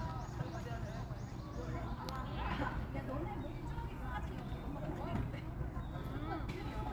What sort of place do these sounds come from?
park